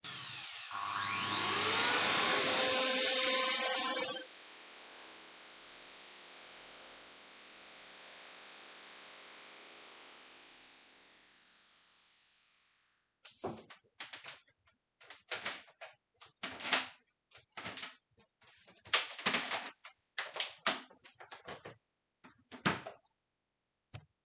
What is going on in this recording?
I started the vaccum cleaner and turned it off after 10 seconds. Then i started wrapping the powercalbe around the vaccum cleaner's handle.